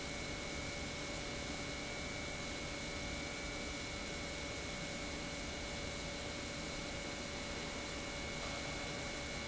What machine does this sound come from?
pump